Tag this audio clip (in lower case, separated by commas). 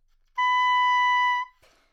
music, musical instrument, wind instrument